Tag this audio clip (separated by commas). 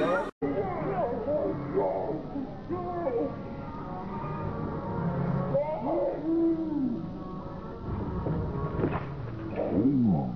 Speech